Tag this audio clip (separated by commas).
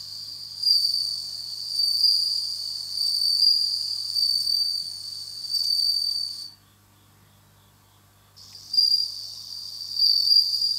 cricket chirping